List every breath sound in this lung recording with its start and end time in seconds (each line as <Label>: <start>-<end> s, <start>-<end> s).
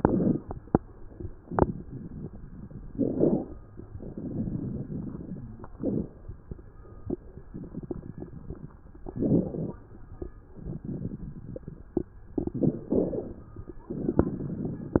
Inhalation: 1.36-2.95 s, 3.80-5.68 s, 7.46-8.99 s, 10.54-12.29 s
Exhalation: 2.91-3.88 s, 5.70-7.43 s, 9.03-10.49 s, 12.30-13.80 s
Crackles: 7.46-8.99 s, 9.03-10.49 s, 10.54-12.29 s, 12.30-13.80 s